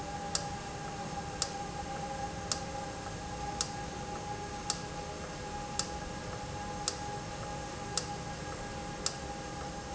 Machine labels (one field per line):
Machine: valve